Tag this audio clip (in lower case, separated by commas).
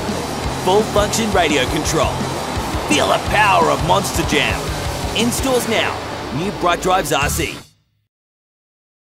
speech, music